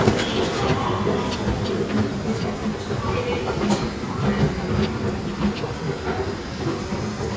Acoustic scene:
subway station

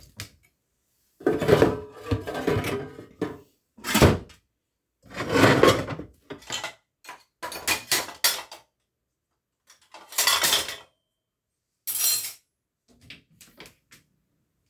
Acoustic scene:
kitchen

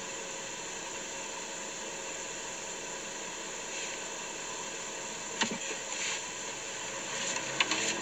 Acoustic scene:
car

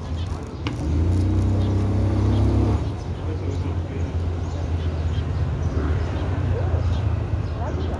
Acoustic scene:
residential area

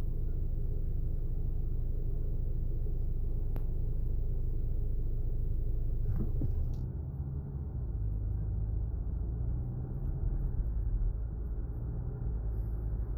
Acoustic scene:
car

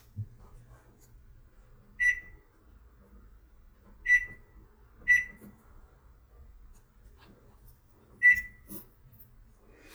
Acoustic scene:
kitchen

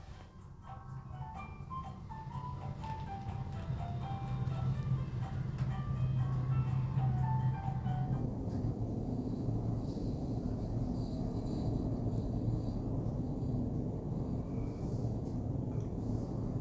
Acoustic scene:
elevator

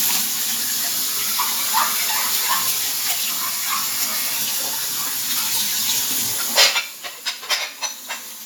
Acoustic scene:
kitchen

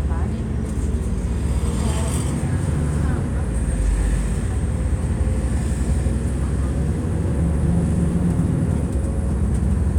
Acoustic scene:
bus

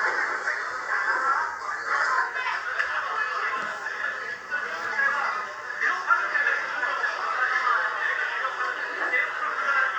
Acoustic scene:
crowded indoor space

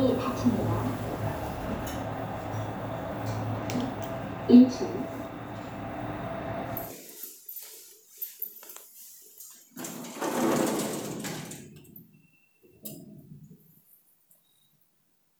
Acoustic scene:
elevator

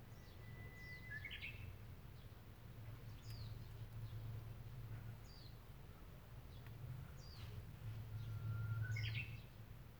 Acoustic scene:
park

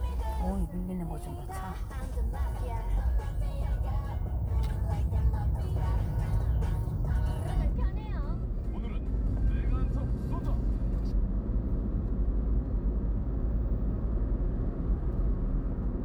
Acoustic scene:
car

